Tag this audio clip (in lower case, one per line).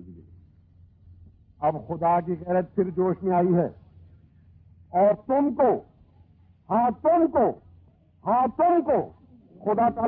man speaking
speech